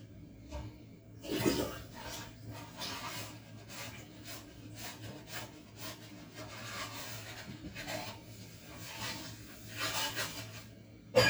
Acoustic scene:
kitchen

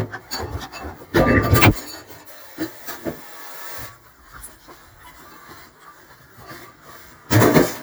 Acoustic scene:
kitchen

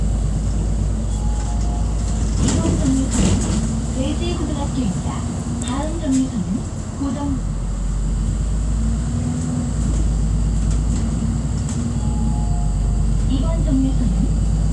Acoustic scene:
bus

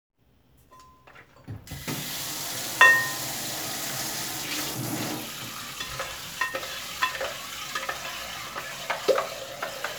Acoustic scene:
kitchen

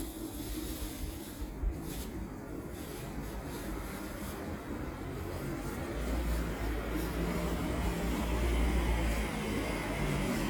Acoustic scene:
residential area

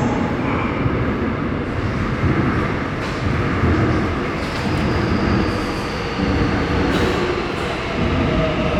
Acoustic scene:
subway station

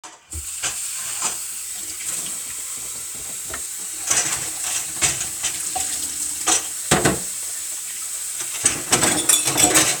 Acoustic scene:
kitchen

